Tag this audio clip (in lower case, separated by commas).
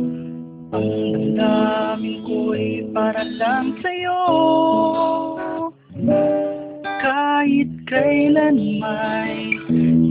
music, strum, plucked string instrument, musical instrument, acoustic guitar, guitar